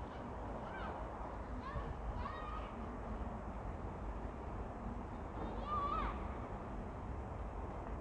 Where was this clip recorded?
in a residential area